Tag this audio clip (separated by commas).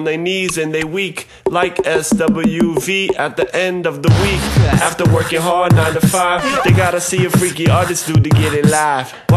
Music